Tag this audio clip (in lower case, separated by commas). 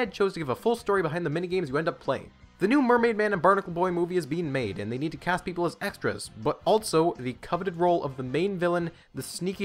music, speech